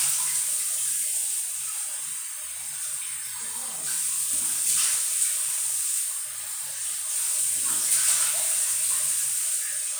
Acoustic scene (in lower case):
restroom